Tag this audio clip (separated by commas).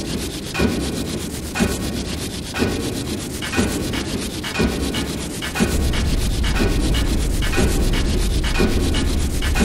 Music